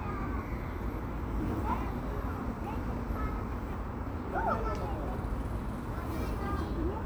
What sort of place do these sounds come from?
park